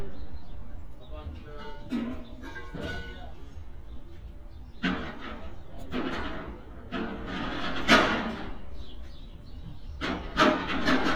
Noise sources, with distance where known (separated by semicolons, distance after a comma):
person or small group talking